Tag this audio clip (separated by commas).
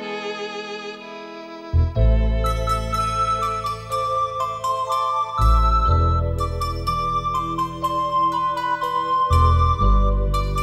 Music